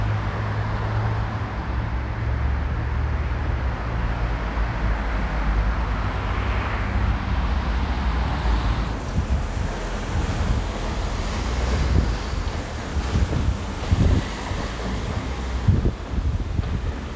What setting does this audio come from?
street